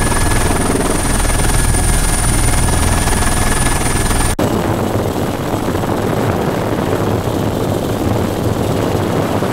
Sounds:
helicopter, aircraft, vehicle

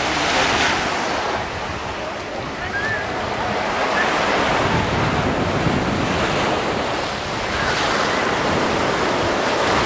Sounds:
speech

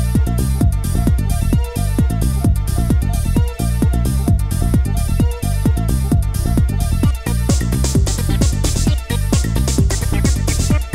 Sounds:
music, techno

